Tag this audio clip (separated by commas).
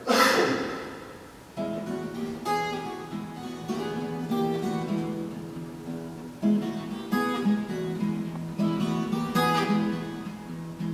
String section, Music